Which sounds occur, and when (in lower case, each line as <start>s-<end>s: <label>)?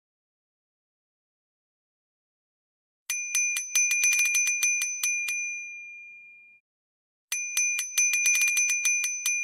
7.3s-9.4s: bicycle bell